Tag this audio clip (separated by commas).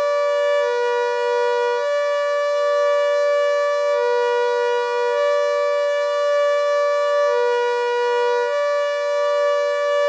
Vehicle horn